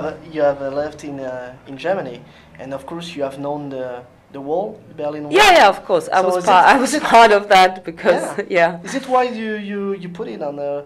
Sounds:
speech, conversation

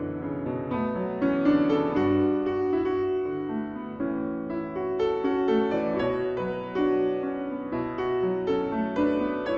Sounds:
piano, keyboard (musical), playing piano

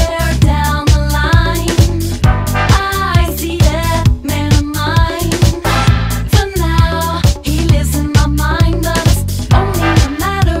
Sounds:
music, disco, singing

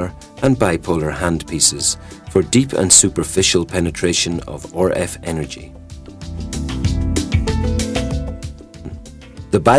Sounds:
narration, speech, male speech, music

